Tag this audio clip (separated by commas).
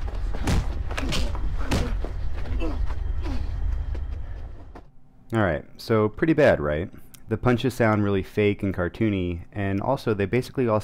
Speech